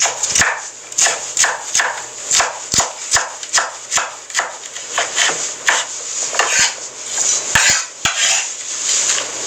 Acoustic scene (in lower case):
kitchen